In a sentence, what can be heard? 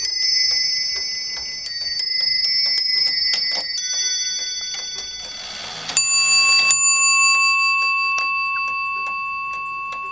Bells chiming, a clock ticking